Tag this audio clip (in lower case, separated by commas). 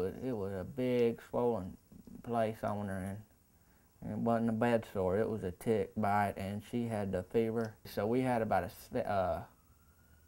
speech